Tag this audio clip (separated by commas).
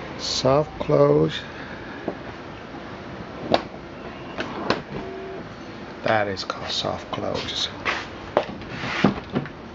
opening or closing car doors